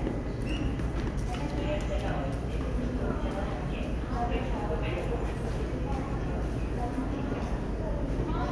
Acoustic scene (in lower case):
subway station